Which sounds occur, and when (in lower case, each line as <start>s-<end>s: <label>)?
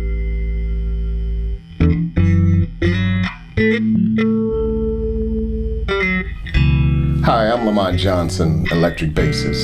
0.0s-9.6s: music
7.2s-9.6s: male speech